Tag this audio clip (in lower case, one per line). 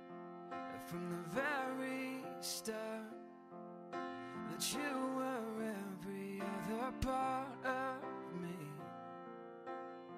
music